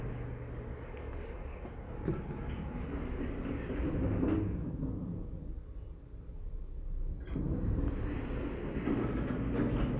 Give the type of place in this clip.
elevator